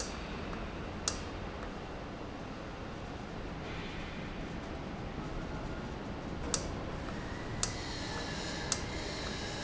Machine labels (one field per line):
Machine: valve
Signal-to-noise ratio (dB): -6 dB